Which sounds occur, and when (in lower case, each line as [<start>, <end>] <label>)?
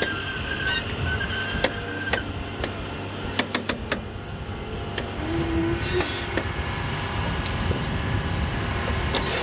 [0.00, 0.82] squeal
[0.00, 9.42] heavy engine (low frequency)
[0.00, 9.42] wind
[0.92, 1.36] wind noise (microphone)
[1.04, 2.21] squeal
[1.60, 1.68] generic impact sounds
[2.08, 2.17] generic impact sounds
[2.58, 2.68] generic impact sounds
[3.34, 3.38] generic impact sounds
[3.51, 3.69] generic impact sounds
[3.87, 3.99] generic impact sounds
[4.91, 5.01] generic impact sounds
[5.38, 6.05] wind noise (microphone)
[5.78, 6.25] squeal
[6.29, 6.44] generic impact sounds
[6.41, 8.50] wind noise (microphone)
[7.41, 7.50] generic impact sounds
[7.67, 7.77] generic impact sounds
[8.91, 9.38] squeal
[9.10, 9.23] generic impact sounds